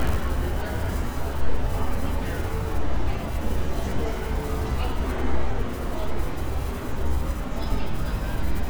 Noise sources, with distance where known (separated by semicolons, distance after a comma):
unidentified human voice